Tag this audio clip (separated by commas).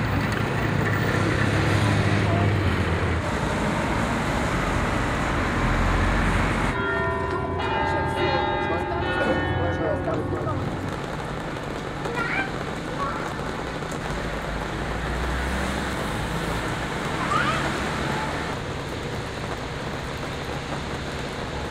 Bell, roadway noise, Motor vehicle (road), Church bell, Vehicle